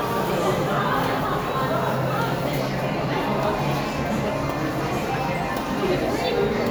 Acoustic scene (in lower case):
crowded indoor space